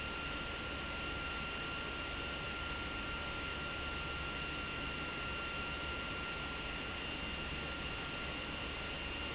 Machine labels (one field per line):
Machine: pump